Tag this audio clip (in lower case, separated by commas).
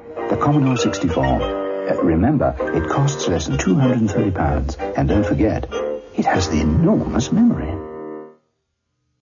music, speech